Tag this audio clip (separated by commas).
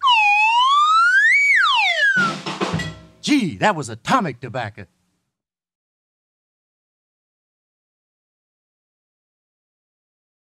Siren